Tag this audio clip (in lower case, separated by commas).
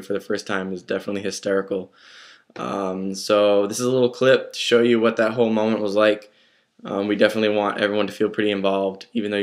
speech